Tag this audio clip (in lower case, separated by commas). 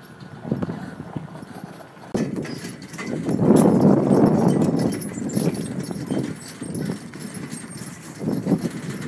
clip-clop, horse clip-clop